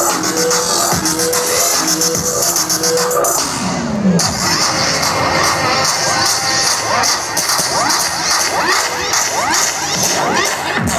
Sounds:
electronic music
dubstep
music

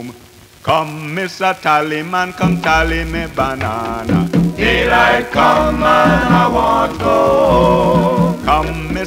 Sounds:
music

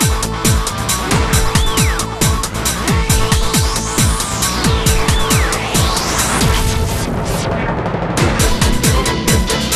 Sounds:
music

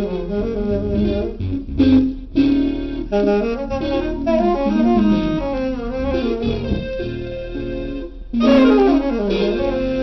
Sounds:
music

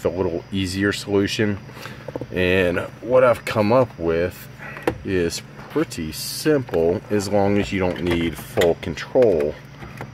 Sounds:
speech

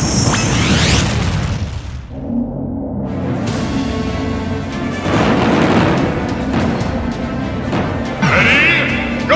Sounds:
music

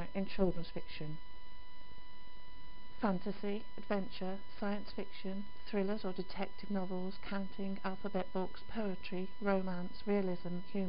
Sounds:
speech

